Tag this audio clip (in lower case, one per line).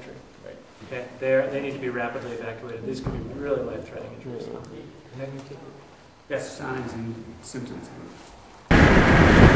speech
inside a small room